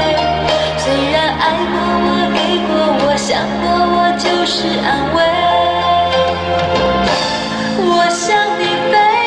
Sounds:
music

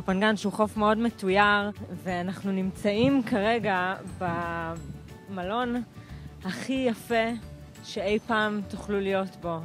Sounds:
speech
music

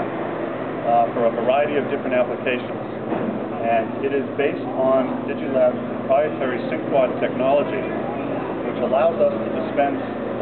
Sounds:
speech

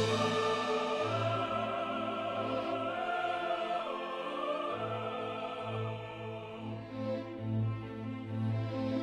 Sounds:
music

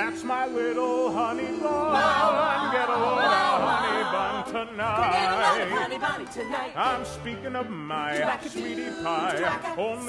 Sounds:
music
male singing
female singing

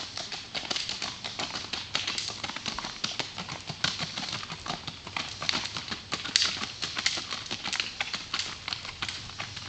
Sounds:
clip-clop
horse clip-clop

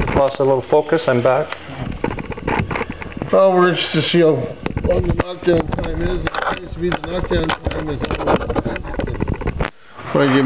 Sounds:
speech

